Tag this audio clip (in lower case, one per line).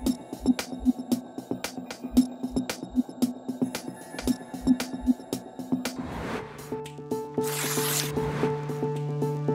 music